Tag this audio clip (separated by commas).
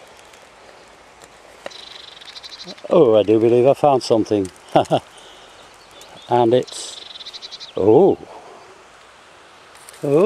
Speech, Environmental noise